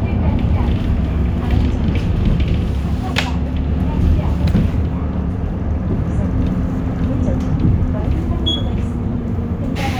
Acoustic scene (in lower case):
bus